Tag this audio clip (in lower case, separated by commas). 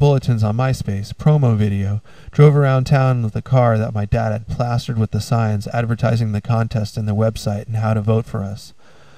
speech